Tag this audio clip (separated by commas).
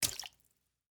Water, Liquid, splatter